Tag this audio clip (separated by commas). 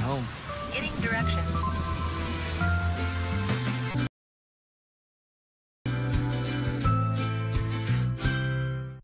Music, Speech